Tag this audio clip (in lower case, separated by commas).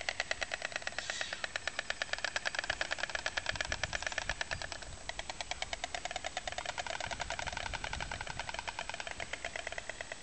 bird squawking